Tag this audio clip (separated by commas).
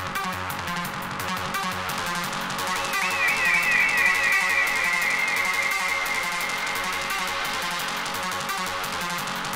Music